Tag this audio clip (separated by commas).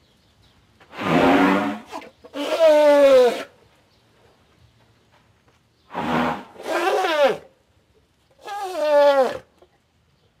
elephant trumpeting